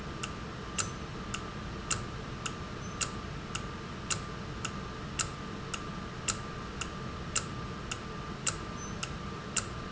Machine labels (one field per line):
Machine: valve